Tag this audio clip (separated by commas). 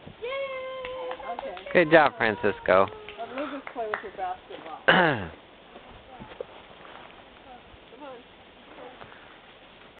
Speech